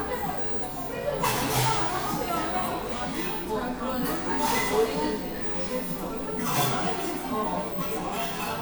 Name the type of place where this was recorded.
cafe